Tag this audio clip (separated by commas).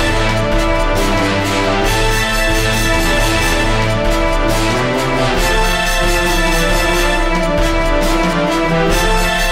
Background music, Music, Theme music